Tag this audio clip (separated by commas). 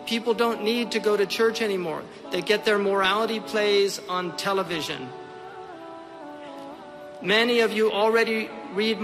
Music, Speech